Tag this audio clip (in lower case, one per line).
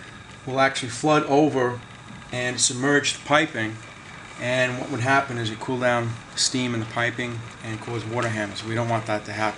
speech